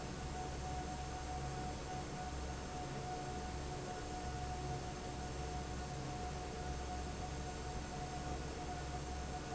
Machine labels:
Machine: fan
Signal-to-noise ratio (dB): 0 dB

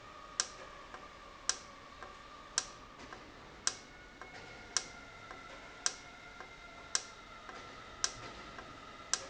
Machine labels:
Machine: valve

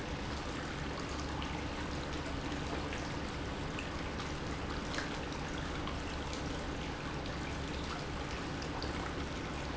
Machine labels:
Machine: pump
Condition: normal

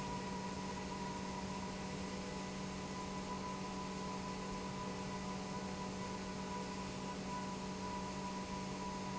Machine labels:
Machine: pump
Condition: normal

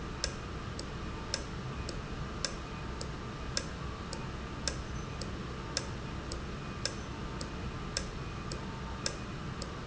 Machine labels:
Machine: valve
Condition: normal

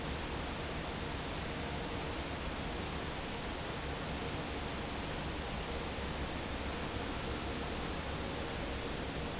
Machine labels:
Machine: fan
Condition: normal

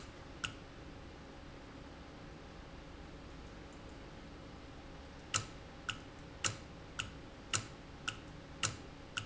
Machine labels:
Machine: valve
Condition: normal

